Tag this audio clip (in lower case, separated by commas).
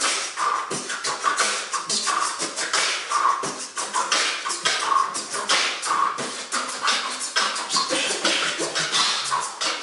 beatboxing, inside a large room or hall, music